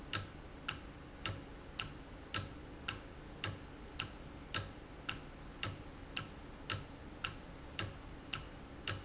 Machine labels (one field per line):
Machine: valve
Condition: normal